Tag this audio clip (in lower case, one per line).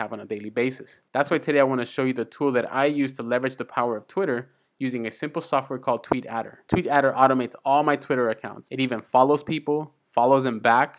speech